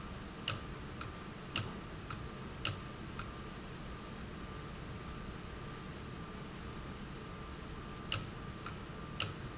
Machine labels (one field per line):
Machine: valve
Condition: abnormal